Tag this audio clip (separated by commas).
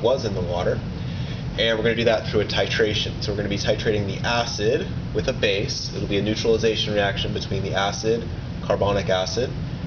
Speech